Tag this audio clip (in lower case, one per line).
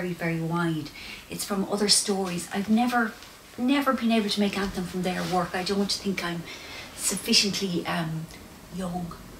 speech